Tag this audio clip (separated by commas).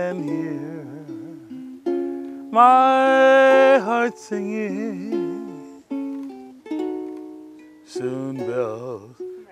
Wedding music, Music